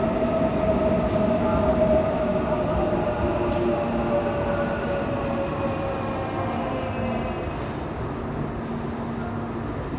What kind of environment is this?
subway station